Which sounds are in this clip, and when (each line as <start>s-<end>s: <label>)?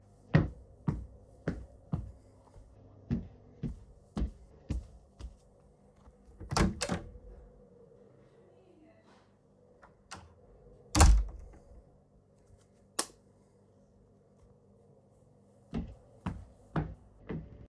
0.3s-2.1s: footsteps
3.0s-5.3s: footsteps
6.4s-7.1s: door
10.9s-11.5s: door
12.9s-13.2s: light switch
15.7s-17.5s: footsteps